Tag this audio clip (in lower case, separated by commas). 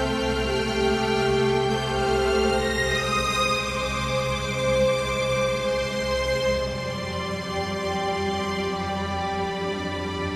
music